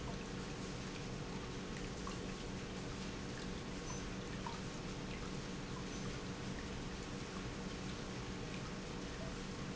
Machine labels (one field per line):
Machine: pump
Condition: normal